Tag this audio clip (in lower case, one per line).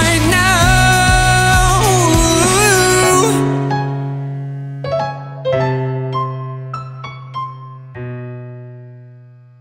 singing
music